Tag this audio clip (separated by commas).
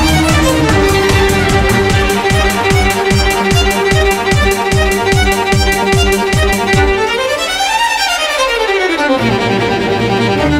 Violin, Bowed string instrument